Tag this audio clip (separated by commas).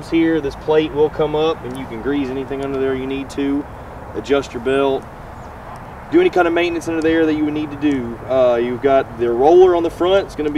Speech